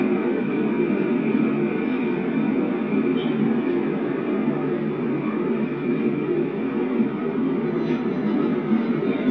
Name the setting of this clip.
subway train